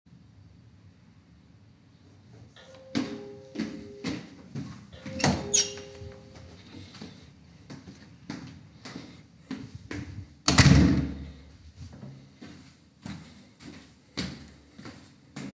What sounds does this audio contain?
bell ringing, footsteps, door